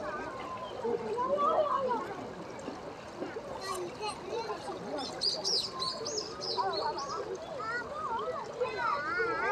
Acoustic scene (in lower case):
park